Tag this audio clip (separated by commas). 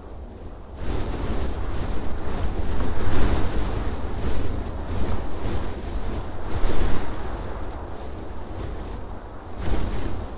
Wind noise (microphone), Rustling leaves